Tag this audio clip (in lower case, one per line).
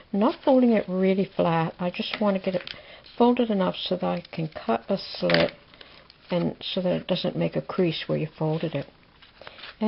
speech
inside a small room